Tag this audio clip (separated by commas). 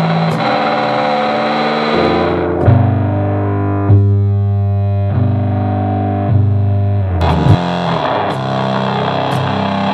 Distortion, Music